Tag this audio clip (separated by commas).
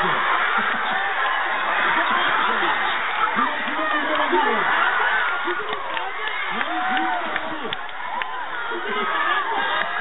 Speech